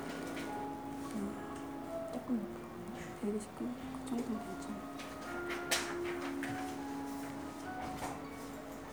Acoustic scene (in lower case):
crowded indoor space